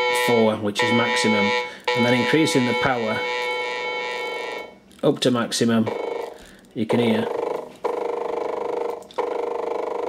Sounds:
synthesizer, speech

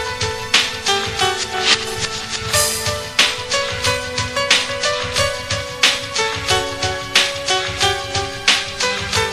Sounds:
sound effect, music

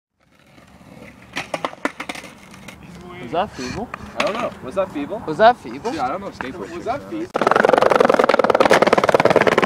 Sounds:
skateboarding

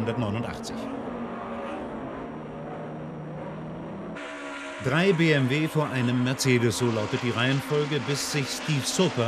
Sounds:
car, motor vehicle (road), vehicle, music, speech, car passing by

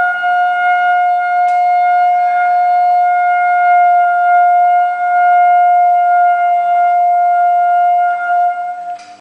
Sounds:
french horn, brass instrument

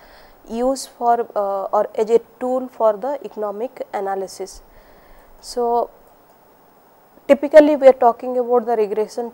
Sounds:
speech

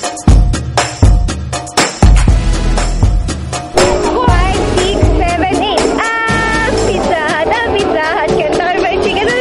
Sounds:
music, speech

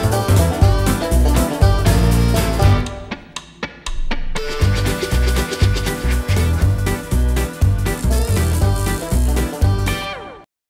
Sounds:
music

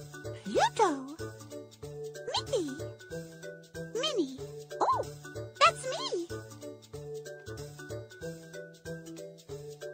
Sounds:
music, speech

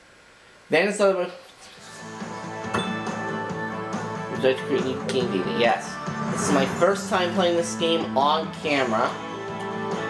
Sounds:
speech, music

